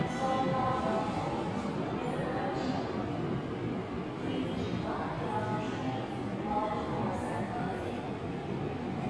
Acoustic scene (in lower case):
subway station